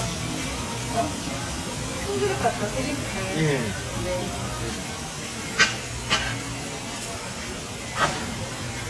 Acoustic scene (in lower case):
restaurant